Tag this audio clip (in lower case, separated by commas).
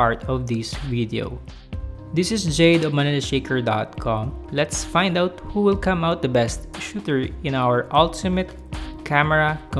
speech, music